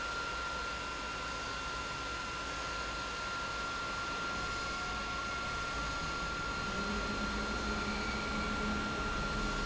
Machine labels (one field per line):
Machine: pump